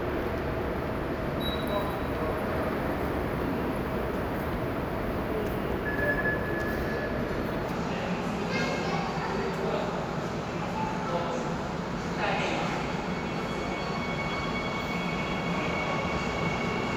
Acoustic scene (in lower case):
subway station